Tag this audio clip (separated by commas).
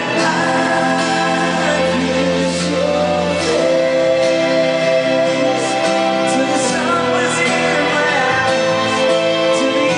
inside a large room or hall, Music